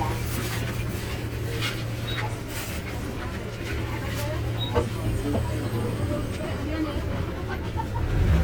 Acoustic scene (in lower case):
bus